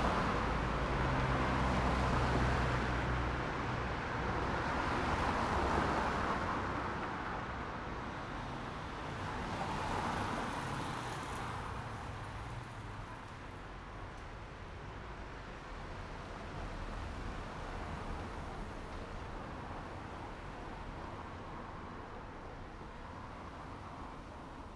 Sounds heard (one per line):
motorcycle
car engine accelerating
car
motorcycle brakes
motorcycle engine accelerating
car wheels rolling
motorcycle engine idling